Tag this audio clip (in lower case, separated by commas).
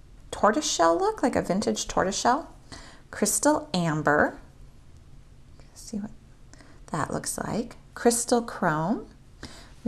speech